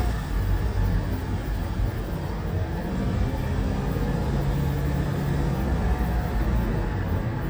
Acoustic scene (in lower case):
car